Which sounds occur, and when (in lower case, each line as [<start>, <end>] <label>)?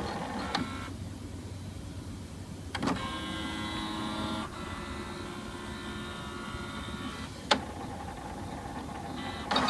[0.00, 0.84] printer
[0.00, 9.65] background noise
[2.69, 7.27] printer
[7.49, 9.65] printer